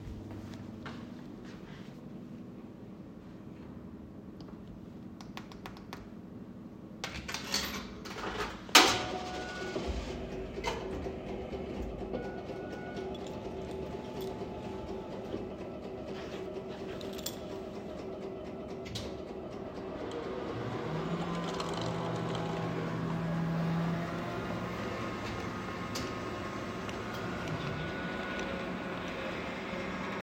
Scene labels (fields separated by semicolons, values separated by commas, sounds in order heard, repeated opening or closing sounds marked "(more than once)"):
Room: living room; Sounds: footsteps, coffee machine, keys